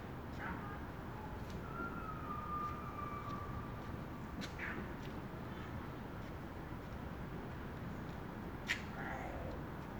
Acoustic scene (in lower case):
residential area